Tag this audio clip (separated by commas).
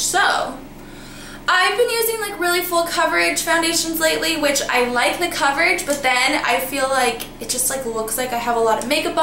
Speech